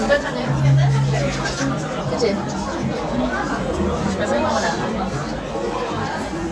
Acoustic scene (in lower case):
crowded indoor space